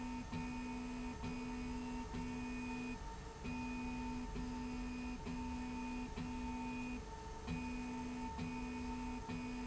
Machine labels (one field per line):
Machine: slide rail